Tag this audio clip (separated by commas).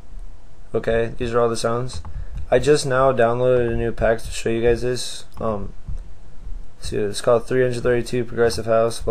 Speech